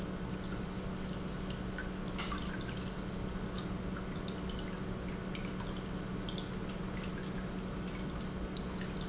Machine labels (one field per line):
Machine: pump